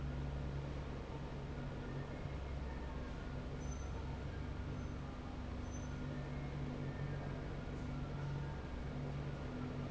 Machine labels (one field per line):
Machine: fan